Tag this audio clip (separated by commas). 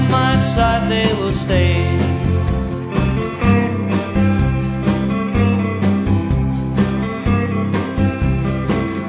Country, slide guitar, Blues, Music, Singing